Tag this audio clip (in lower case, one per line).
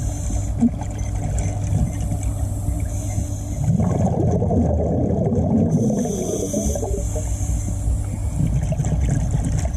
scuba diving